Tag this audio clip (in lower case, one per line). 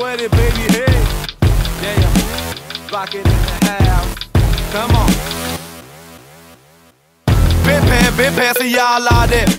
music